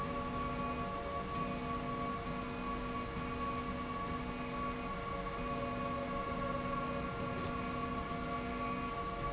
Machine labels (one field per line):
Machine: slide rail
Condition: normal